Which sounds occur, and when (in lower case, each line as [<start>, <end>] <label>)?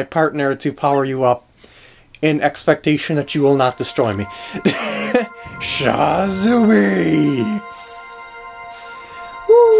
[0.00, 3.22] mechanisms
[0.07, 1.30] man speaking
[0.85, 1.09] sound effect
[1.55, 2.02] breathing
[1.60, 1.66] generic impact sounds
[2.11, 2.20] tick
[2.20, 4.24] man speaking
[3.24, 9.75] music
[3.28, 3.54] sound effect
[3.85, 4.08] sound effect
[4.26, 4.57] breathing
[4.60, 5.27] giggle
[5.28, 5.56] breathing
[5.55, 7.56] man speaking
[5.57, 7.58] sound effect
[7.67, 8.56] sound effect
[8.65, 9.47] sound effect
[9.45, 9.75] human voice
[9.64, 9.75] sound effect